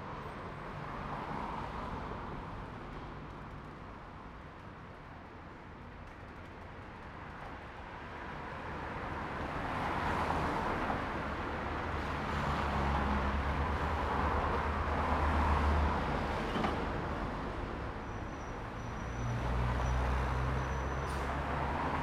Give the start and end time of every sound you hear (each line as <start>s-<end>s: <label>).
0.1s-22.0s: car
0.1s-22.0s: car wheels rolling
17.9s-21.6s: bus brakes
17.9s-22.0s: bus
19.4s-21.2s: car engine accelerating
21.0s-21.6s: bus compressor